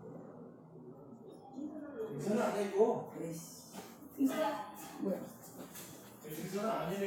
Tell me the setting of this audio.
elevator